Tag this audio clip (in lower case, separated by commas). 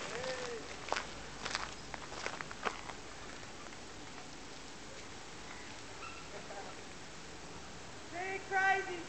speech